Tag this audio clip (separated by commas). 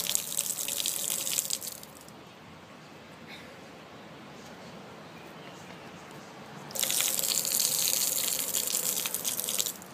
Liquid